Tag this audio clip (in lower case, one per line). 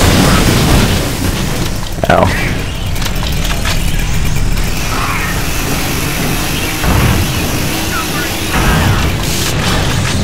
speech